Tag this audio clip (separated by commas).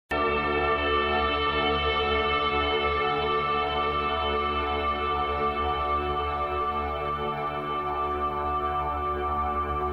Ambient music, Music